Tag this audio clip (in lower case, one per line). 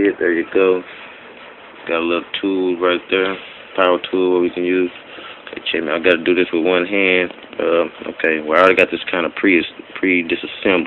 speech